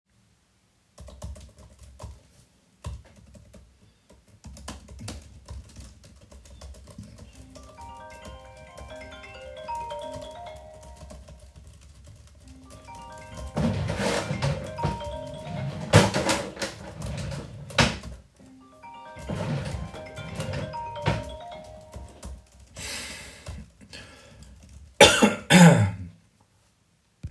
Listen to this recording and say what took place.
i was typing the keyboard of my laptop. Out of nowhere, the phone was ringing several times. While it was ringing, I was typing the keyboard with one hand and the other hand was opening the desk drawers to check if the phone was in there. Afterwards, I was a little bit coughing at the end.